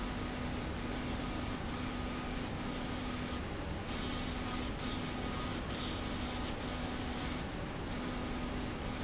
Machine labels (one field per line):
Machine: slide rail